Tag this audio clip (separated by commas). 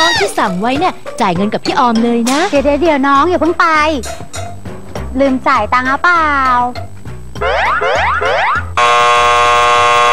Siren, Speech, Music